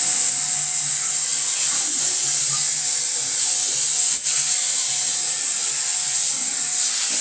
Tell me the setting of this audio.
restroom